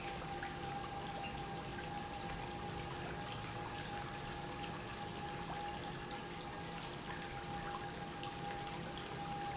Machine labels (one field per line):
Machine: pump